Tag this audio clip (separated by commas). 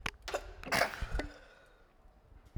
Respiratory sounds, Sneeze